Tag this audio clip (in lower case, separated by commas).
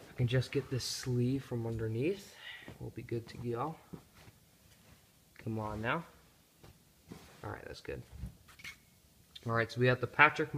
speech, inside a small room